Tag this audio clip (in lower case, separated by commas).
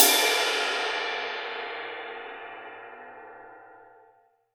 percussion, music, musical instrument, cymbal